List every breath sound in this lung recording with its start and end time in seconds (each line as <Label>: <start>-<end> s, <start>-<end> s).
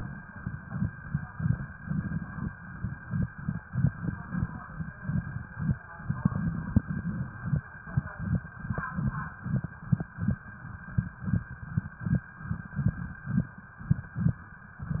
Inhalation: 1.83-2.50 s, 3.71-4.58 s, 6.09-7.30 s
Crackles: 1.83-2.50 s, 3.71-4.58 s, 6.09-7.30 s